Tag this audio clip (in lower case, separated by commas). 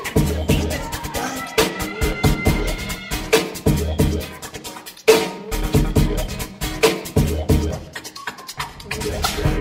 scratching (performance technique), music